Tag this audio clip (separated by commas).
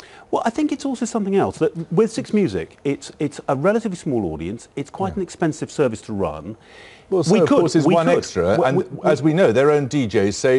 Speech